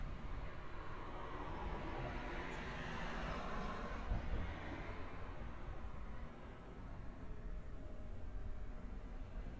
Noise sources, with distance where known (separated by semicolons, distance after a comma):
background noise